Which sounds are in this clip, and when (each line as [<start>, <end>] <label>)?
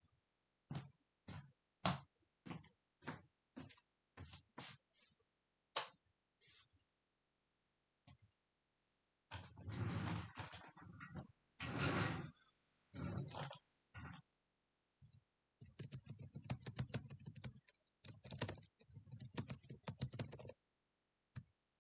[0.67, 4.86] footsteps
[5.71, 5.96] light switch
[14.98, 20.62] keyboard typing